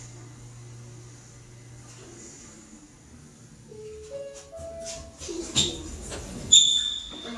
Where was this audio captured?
in an elevator